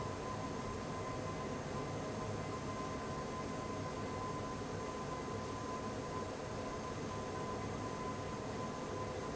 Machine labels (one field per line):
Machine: fan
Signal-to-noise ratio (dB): 0 dB